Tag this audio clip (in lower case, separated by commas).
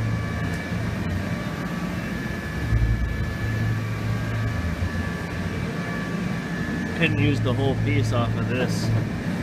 vehicle, speech